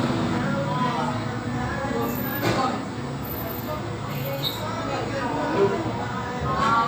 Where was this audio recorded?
in a cafe